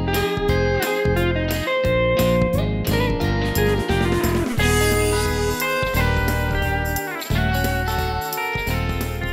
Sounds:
Music

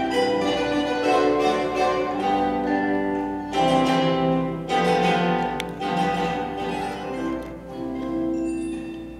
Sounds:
playing zither

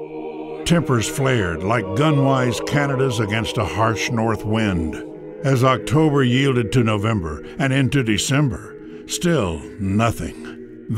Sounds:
Speech, Music

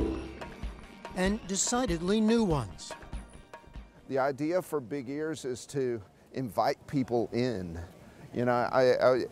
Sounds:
Speech, Music

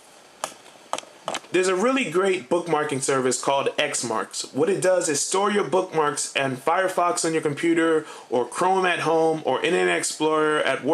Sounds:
Speech

